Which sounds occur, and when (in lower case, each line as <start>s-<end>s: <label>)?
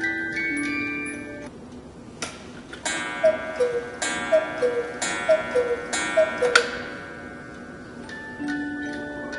0.0s-1.4s: alarm clock
0.0s-9.3s: background noise
1.6s-1.7s: tick
2.1s-2.3s: alarm clock
2.6s-9.3s: alarm clock